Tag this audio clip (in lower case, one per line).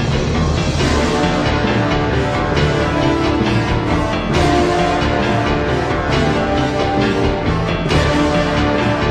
theme music